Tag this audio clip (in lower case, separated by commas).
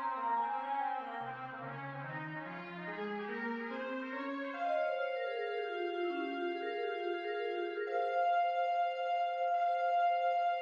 xylophone, music, musical instrument, trumpet